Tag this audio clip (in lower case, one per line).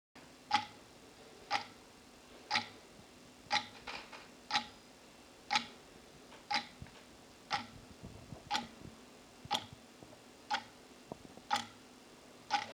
mechanisms
clock